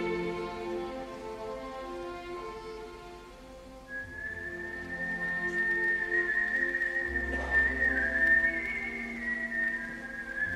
Whistling accompanied by an orchestra